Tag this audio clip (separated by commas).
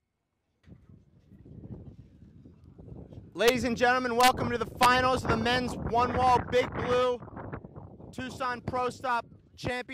Speech